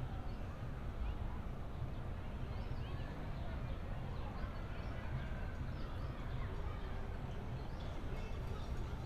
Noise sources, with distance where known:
unidentified alert signal, far

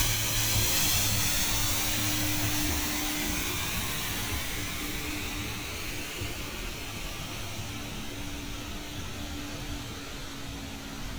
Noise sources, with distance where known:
engine of unclear size

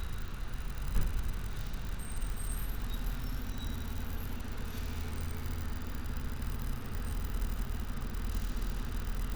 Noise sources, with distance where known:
medium-sounding engine, far

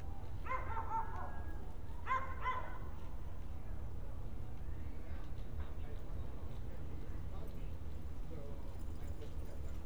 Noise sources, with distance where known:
person or small group talking, far
dog barking or whining, near

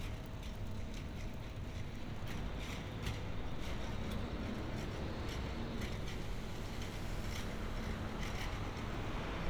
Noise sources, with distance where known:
large-sounding engine, near
non-machinery impact, near

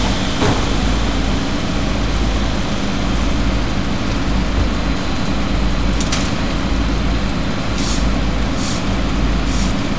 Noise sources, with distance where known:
large-sounding engine, near

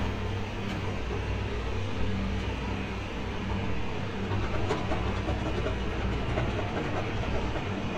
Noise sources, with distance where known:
unidentified impact machinery

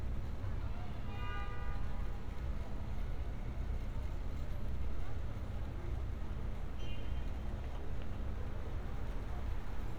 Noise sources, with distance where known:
car horn, far

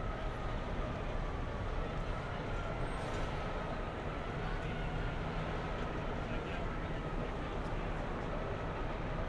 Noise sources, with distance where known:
engine of unclear size

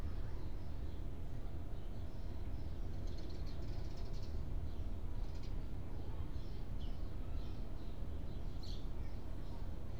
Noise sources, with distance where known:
background noise

